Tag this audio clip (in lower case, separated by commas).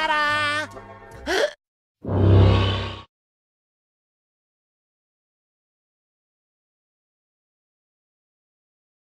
music